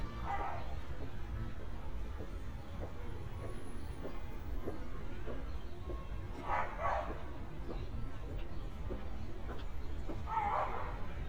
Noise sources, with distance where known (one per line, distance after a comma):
music from an unclear source, far
dog barking or whining, near